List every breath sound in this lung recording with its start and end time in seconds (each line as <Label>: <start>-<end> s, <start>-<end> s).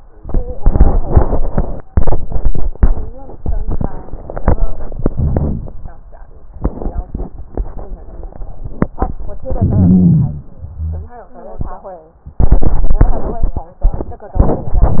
Inhalation: 5.15-5.87 s, 9.53-10.45 s
Wheeze: 10.79-11.16 s